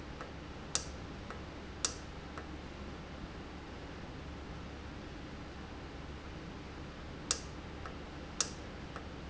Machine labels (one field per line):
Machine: valve